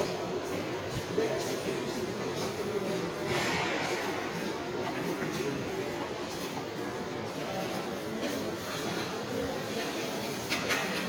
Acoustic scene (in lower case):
subway station